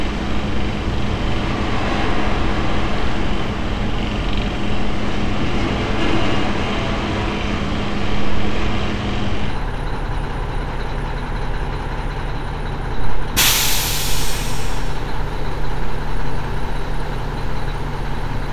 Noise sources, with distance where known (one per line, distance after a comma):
large-sounding engine, near